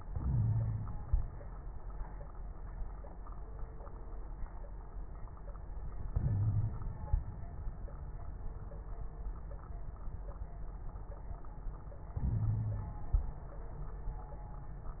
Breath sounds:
0.06-0.98 s: wheeze
0.07-1.24 s: inhalation
6.14-6.75 s: wheeze
6.14-7.14 s: inhalation
12.17-13.13 s: inhalation
12.29-12.95 s: wheeze

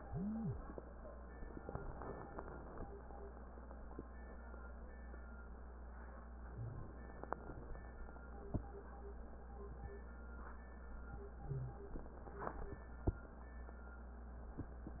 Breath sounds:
6.55-7.95 s: inhalation
11.42-12.86 s: inhalation

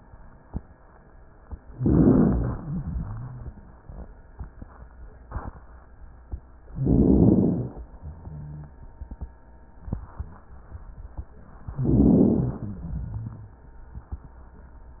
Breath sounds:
1.75-2.65 s: inhalation
1.75-2.65 s: crackles
2.67-3.79 s: exhalation
6.67-7.86 s: inhalation
7.99-8.73 s: rhonchi
11.52-12.84 s: inhalation
12.82-13.75 s: exhalation

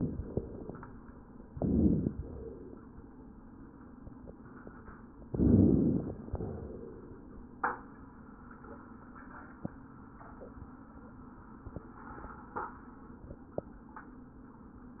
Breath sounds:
1.50-2.15 s: inhalation
1.50-2.15 s: crackles
5.28-6.15 s: inhalation
5.28-6.15 s: crackles
6.28-7.16 s: exhalation

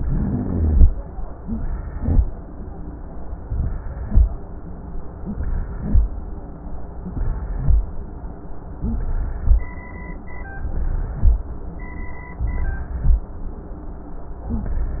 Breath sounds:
0.00-0.84 s: inhalation
0.00-0.84 s: rhonchi
1.46-2.17 s: inhalation
3.47-4.18 s: inhalation
5.25-5.96 s: inhalation
7.06-7.76 s: inhalation
8.84-9.54 s: inhalation
10.57-11.35 s: inhalation
12.41-13.19 s: inhalation

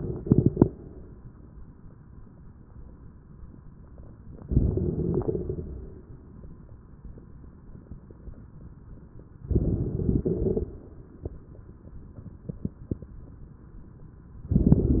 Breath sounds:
4.44-5.24 s: inhalation
4.45-5.23 s: crackles
5.24-6.34 s: exhalation
9.52-10.24 s: inhalation
9.52-10.24 s: crackles
10.25-11.07 s: exhalation
10.25-11.07 s: crackles

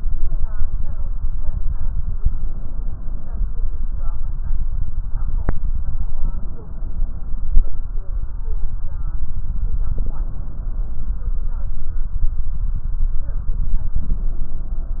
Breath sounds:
2.23-3.42 s: inhalation
6.22-7.55 s: inhalation
8.44-8.82 s: stridor
9.93-11.15 s: inhalation
13.98-15.00 s: inhalation

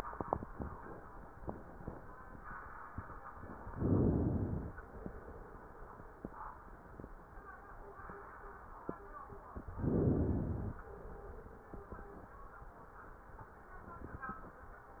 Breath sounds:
3.68-4.77 s: inhalation
9.68-10.78 s: inhalation

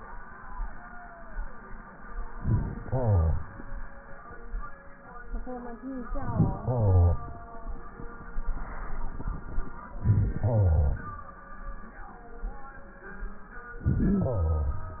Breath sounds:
2.35-3.46 s: inhalation
6.07-7.17 s: inhalation
10.02-11.13 s: inhalation
13.84-14.95 s: inhalation

